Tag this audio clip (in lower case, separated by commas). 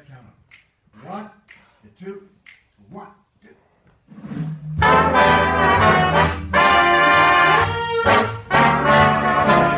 musical instrument, music, trumpet